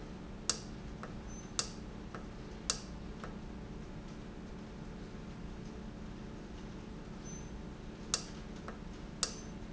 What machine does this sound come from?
valve